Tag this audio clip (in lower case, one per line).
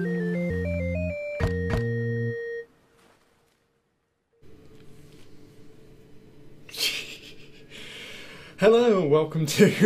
speech
music